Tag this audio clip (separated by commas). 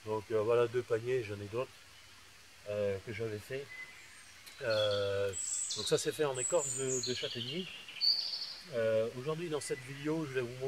Speech